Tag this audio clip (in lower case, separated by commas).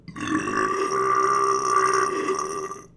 eructation